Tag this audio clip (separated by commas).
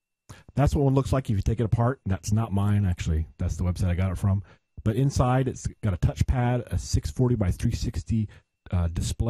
Speech